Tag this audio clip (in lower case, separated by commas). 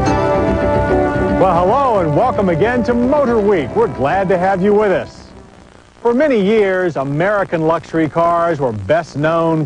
speech, music